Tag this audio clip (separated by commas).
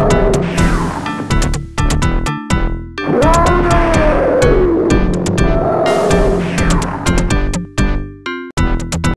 Music